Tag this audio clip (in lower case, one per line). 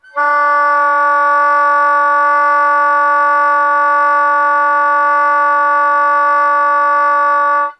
musical instrument
wind instrument
music